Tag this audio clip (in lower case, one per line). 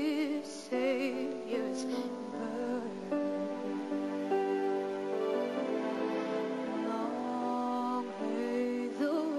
music
female singing